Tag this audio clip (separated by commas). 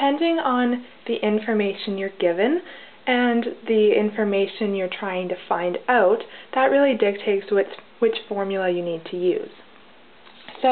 Speech